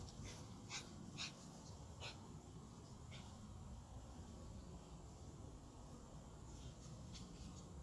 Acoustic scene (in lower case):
park